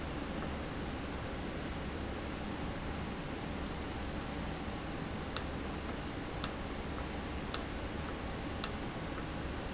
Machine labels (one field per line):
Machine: valve